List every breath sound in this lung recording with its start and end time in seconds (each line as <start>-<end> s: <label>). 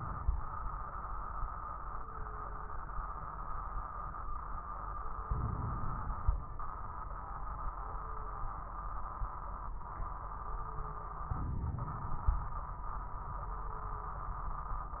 5.24-6.60 s: inhalation
5.24-6.60 s: crackles
11.31-12.67 s: inhalation
11.31-12.67 s: crackles